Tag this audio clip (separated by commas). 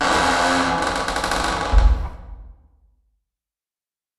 Squeak